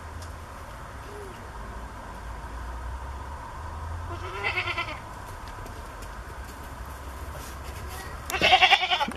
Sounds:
goat, livestock, animal

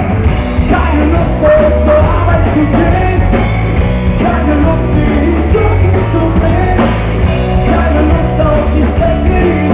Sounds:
exciting music, music

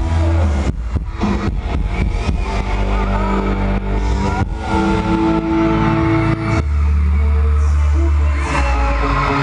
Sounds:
male singing, music

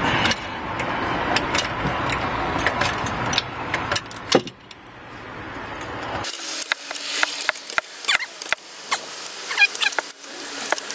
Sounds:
car, vehicle

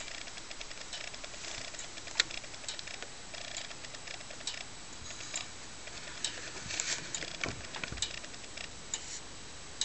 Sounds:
clock

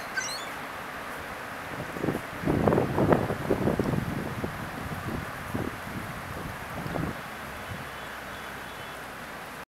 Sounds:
animal

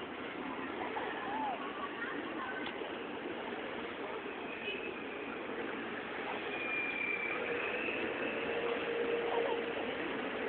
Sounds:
pigeon, bird, outside, urban or man-made, speech

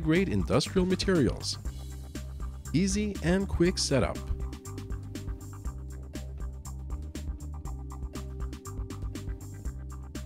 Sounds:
speech, music

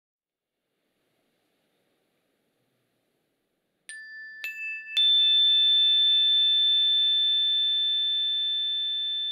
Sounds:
chime

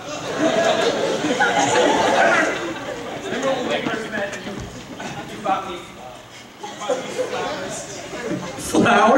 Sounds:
inside a large room or hall, speech

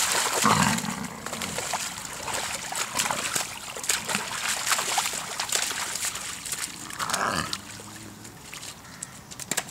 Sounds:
animal, wild animals

